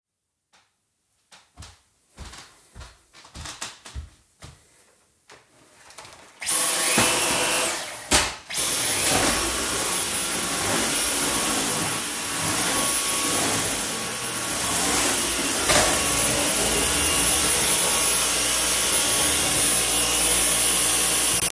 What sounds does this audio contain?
footsteps, vacuum cleaner